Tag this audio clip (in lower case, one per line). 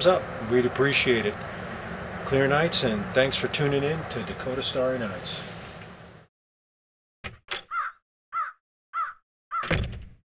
speech
inside a large room or hall